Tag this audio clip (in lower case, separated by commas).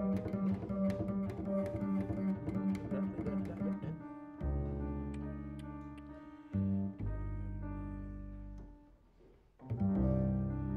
pizzicato, cello